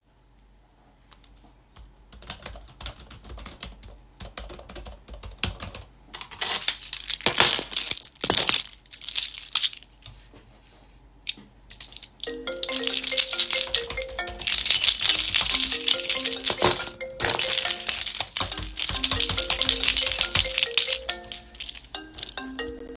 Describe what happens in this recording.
I was typing on the keyboard while the phone was ringing and I shook my keychain.